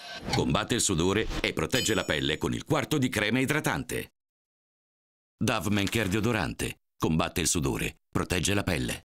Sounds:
speech

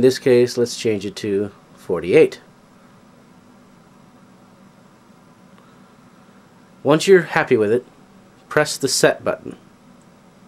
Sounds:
speech

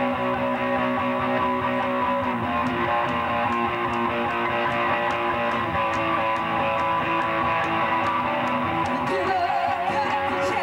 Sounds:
music

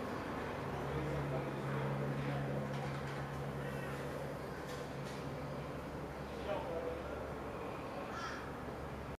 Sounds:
speech

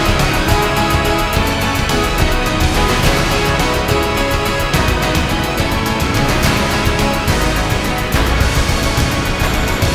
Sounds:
music

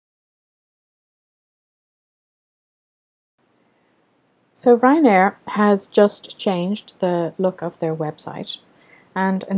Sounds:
speech

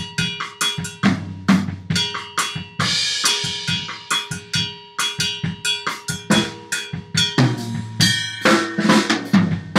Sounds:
percussion
snare drum
drum
bass drum
drum kit
rimshot

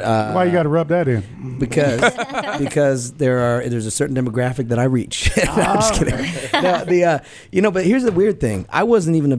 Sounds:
speech

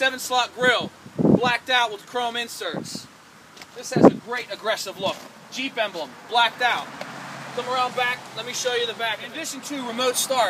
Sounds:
speech

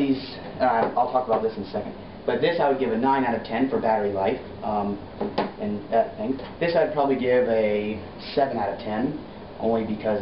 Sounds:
speech

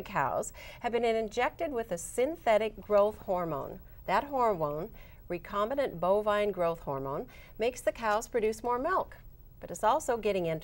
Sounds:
speech

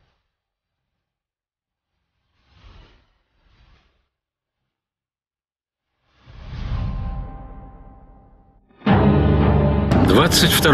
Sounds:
speech
music

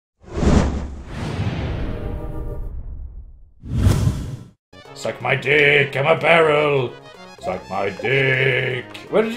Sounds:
sigh

